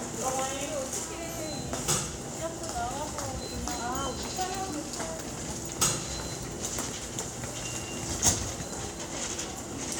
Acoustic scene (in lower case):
subway station